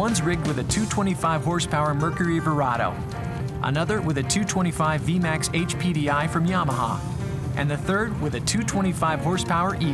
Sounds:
speech, music

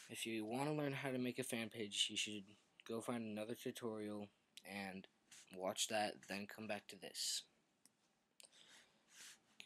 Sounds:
speech

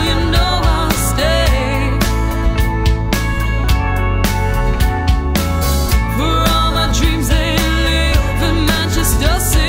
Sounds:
music

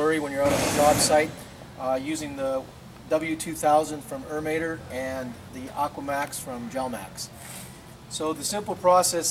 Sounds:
speech

